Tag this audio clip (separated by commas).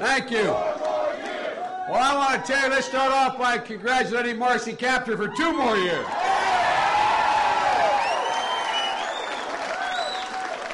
man speaking, Narration, Speech